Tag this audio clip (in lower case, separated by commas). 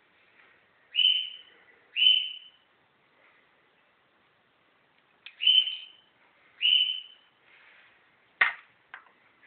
inside a small room